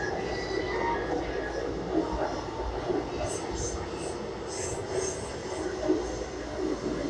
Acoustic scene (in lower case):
subway train